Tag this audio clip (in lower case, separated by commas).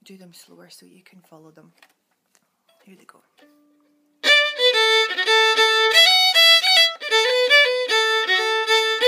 speech, musical instrument, violin, music